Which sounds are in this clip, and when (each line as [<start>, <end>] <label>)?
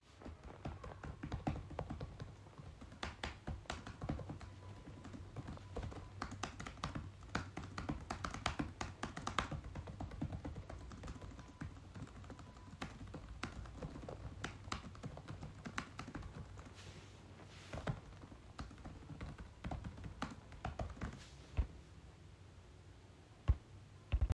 [0.03, 21.96] keyboard typing
[23.26, 24.32] keyboard typing